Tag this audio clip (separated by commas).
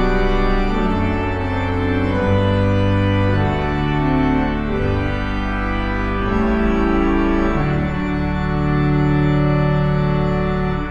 playing electronic organ